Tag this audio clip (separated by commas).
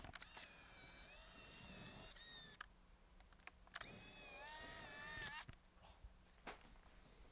Engine